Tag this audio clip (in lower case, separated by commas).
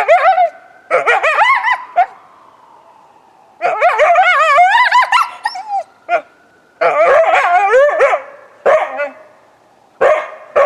coyote howling